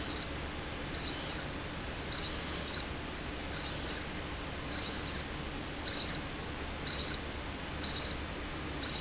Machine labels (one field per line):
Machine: slide rail